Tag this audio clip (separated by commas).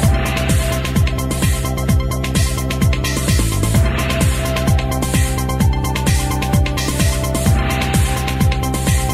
Music